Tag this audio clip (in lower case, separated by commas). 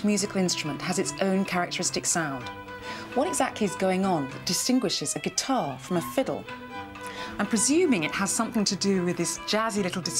speech, music